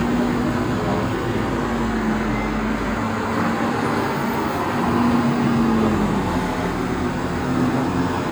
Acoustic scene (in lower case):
street